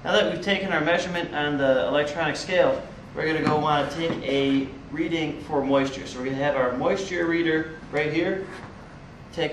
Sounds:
Speech

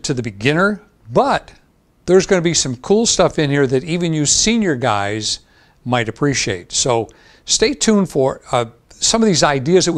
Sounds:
Speech

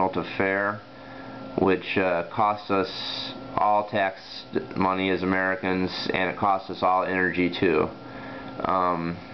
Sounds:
Speech

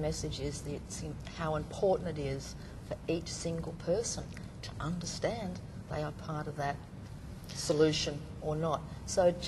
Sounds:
Conversation, Speech

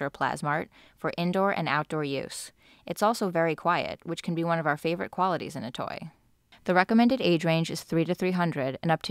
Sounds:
Speech

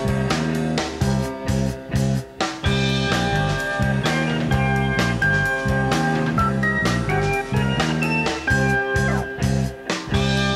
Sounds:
Music, House music

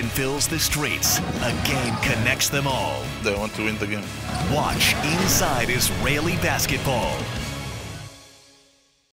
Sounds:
Speech, Music

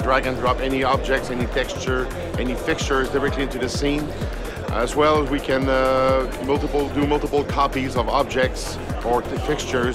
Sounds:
Speech, Music

